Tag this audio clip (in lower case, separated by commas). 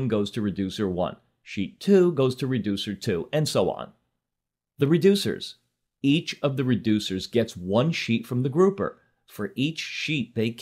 speech, narration